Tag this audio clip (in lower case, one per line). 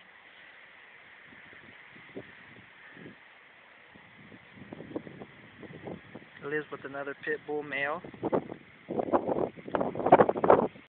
speech